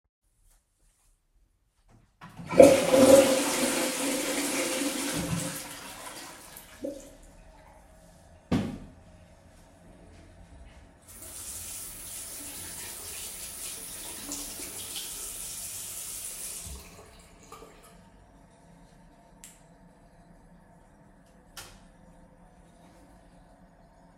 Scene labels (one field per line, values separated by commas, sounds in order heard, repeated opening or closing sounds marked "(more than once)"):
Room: bathroom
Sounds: toilet flushing, running water, light switch